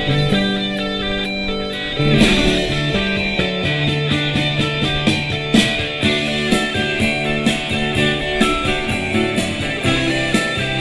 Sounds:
Music

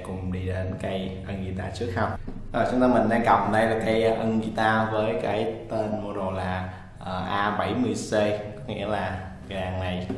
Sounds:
Speech

